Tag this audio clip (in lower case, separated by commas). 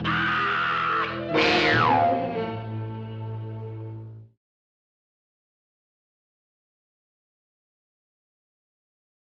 music